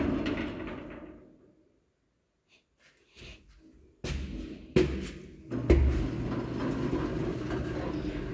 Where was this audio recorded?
in an elevator